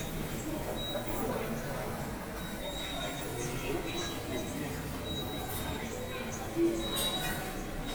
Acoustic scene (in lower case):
subway station